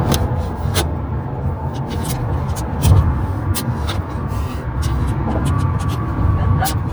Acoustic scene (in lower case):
car